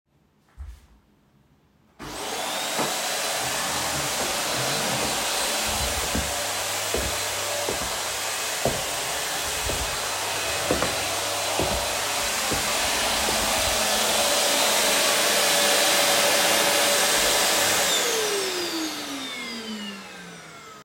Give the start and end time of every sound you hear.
[2.02, 20.84] vacuum cleaner
[2.73, 2.97] footsteps
[6.09, 13.45] footsteps

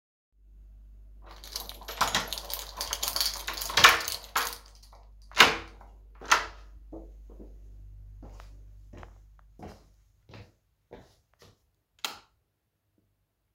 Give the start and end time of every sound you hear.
[1.22, 4.71] keys
[5.33, 5.72] door
[6.18, 6.54] door
[8.20, 11.66] footsteps
[12.02, 12.39] light switch

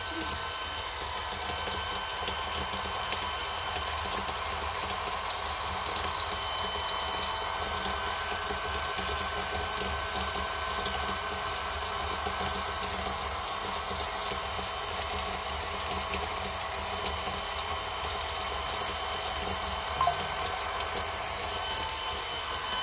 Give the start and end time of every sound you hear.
[0.00, 22.83] running water
[0.05, 22.83] vacuum cleaner
[19.93, 20.43] phone ringing

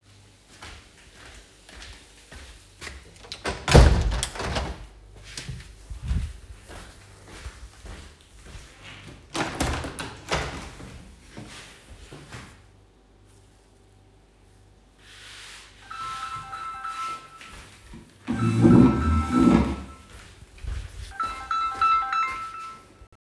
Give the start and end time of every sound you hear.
[0.40, 3.22] footsteps
[3.32, 5.47] window
[5.25, 9.21] footsteps
[9.19, 12.48] window
[15.03, 20.30] window
[15.81, 17.73] phone ringing
[18.22, 20.03] phone ringing
[20.41, 23.21] footsteps
[20.72, 22.72] phone ringing

